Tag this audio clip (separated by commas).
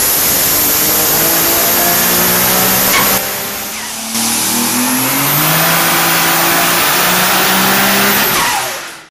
Vehicle, Accelerating, Medium engine (mid frequency), Engine